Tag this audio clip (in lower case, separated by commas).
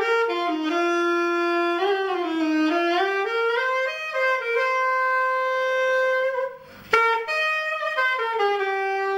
music, playing saxophone, musical instrument, jazz, woodwind instrument, saxophone